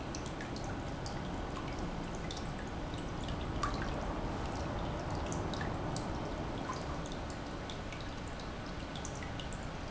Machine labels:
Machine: pump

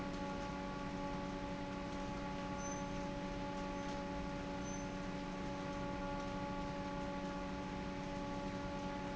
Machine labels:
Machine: fan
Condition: normal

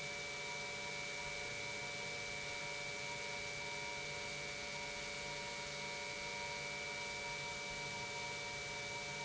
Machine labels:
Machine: pump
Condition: normal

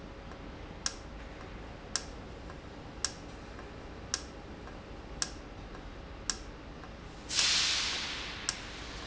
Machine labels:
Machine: valve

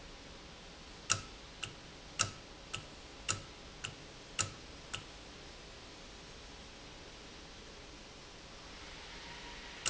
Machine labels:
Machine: valve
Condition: normal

